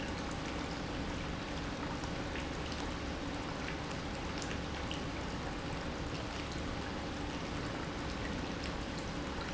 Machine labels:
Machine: pump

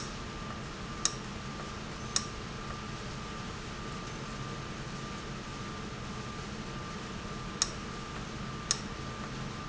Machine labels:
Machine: valve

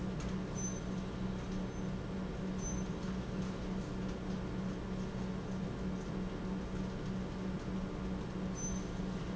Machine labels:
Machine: pump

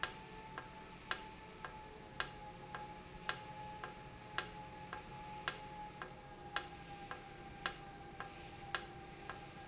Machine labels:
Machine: valve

